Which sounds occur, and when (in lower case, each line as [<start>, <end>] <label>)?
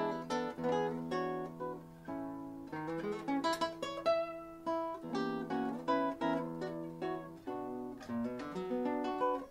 [0.00, 9.50] background noise
[0.00, 9.50] music